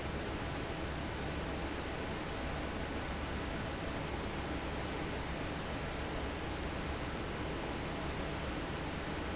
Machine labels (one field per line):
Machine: fan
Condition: normal